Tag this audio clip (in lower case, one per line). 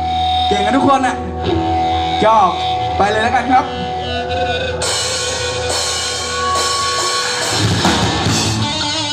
speech
music
pop music